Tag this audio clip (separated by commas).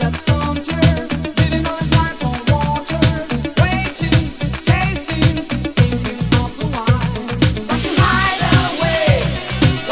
Electronic music, Music, House music